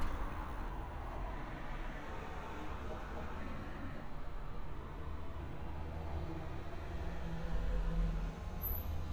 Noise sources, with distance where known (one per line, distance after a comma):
background noise